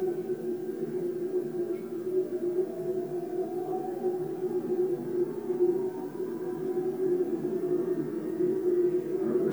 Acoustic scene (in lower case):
subway train